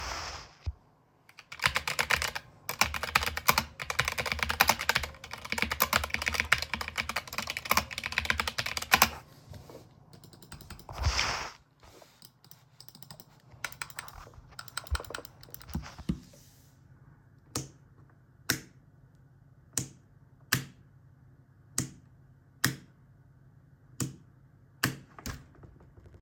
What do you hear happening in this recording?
I am holding the phone while sitting at my desk. I start typing on the keyboard and click the mouse a few times. Then I toggle the light switch to turn the table lamp on and off.